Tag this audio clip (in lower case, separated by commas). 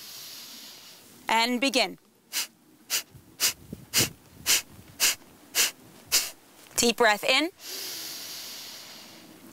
breathing, speech